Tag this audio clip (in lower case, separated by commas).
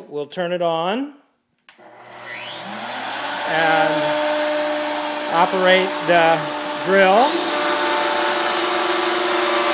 speech